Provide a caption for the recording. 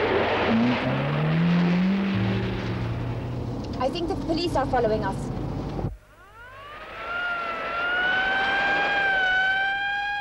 A car accelerates then a woman talks and a siren is triggered